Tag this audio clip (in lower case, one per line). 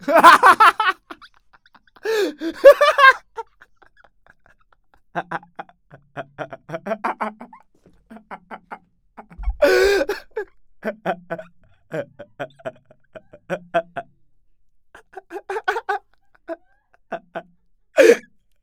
human voice
laughter